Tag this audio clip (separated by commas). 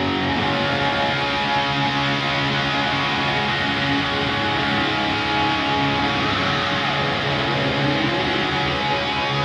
Music